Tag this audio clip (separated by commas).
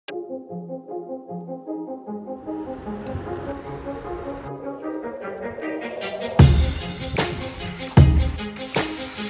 Vehicle, Music